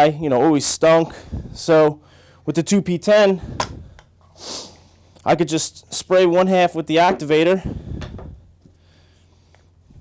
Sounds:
Speech, inside a small room

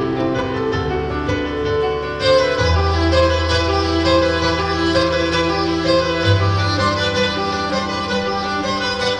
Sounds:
Musical instrument, Music, Violin

